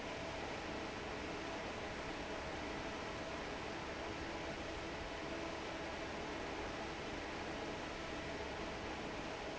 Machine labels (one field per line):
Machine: fan